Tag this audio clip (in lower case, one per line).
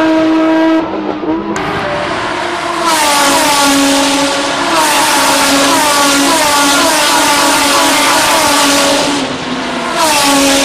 sound effect